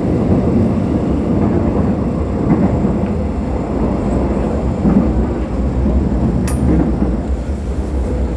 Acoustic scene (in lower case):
subway train